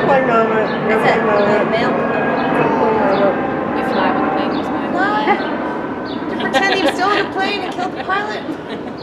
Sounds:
speech

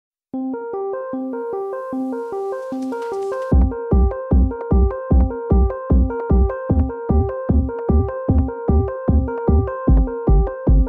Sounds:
synthesizer

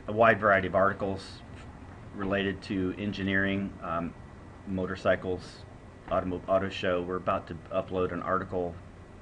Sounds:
speech

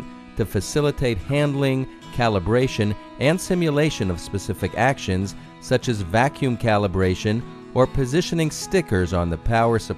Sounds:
music
speech

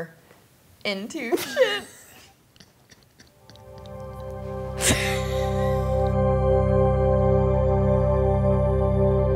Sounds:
inside a small room
music
speech

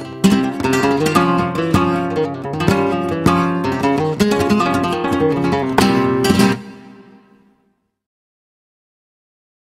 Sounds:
flamenco
music
musical instrument
guitar
plucked string instrument

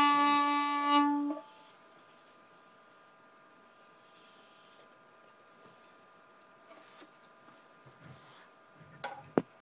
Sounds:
musical instrument
music
violin

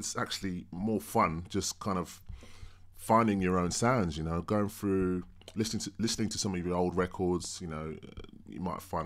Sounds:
speech

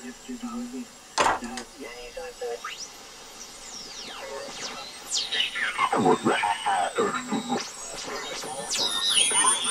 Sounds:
speech
radio

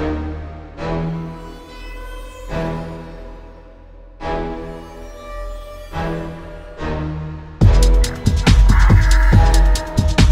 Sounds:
music
dubstep
drum and bass

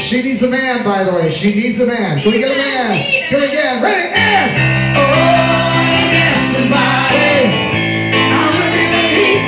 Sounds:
music
speech
choir
female singing
male singing

